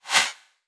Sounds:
swish

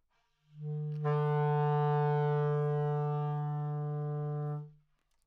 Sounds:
wind instrument, music, musical instrument

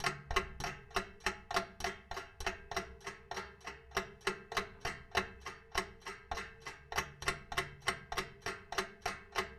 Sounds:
mechanisms, clock

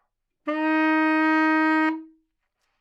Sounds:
musical instrument, music, wind instrument

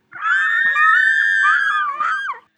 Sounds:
human voice, screaming

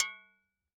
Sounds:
glass, home sounds, dishes, pots and pans

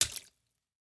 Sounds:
liquid, splatter

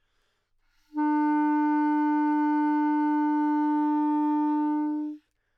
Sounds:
music, musical instrument, wind instrument

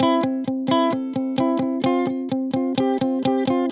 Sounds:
plucked string instrument, musical instrument, guitar, electric guitar, music

